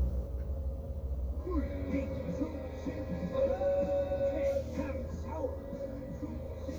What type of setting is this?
car